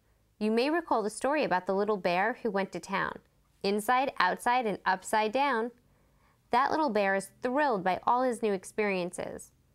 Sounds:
Speech

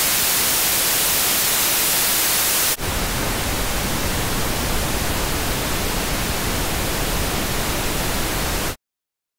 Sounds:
White noise

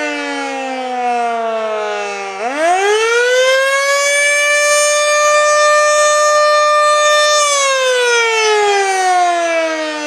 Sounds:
Civil defense siren

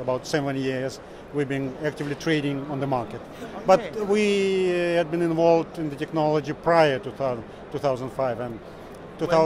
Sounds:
Speech

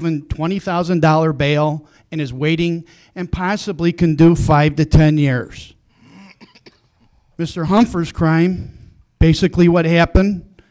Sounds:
Speech

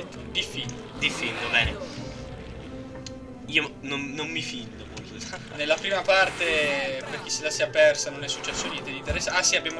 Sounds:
Music, Speech

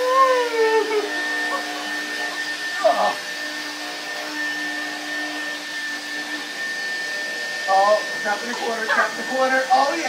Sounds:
Speech

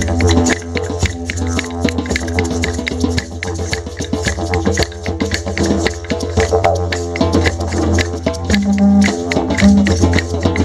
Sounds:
playing didgeridoo

